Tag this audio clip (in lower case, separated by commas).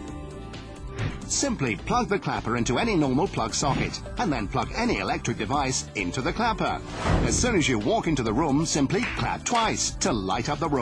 speech, music, clapping